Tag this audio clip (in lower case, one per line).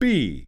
man speaking
human voice
speech